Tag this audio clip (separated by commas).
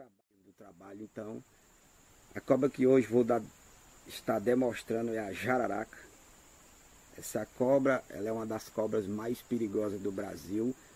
Speech, outside, rural or natural